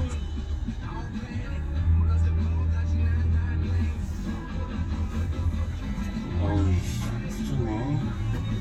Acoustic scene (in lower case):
car